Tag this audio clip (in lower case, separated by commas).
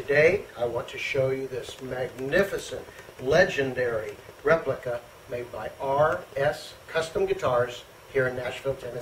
speech